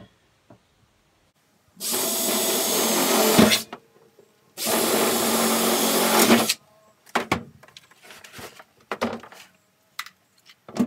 An electric drill is used